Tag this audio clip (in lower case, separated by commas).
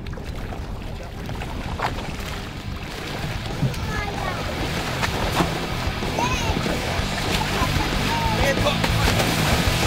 sloshing water, water vehicle, outside, rural or natural, speech, music, vehicle, slosh